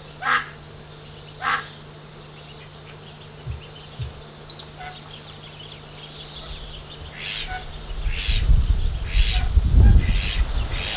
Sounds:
livestock, Duck, Goose, Bird

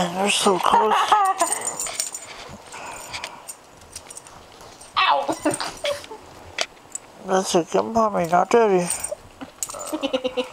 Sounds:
Animal, Domestic animals, inside a small room, Dog, Speech

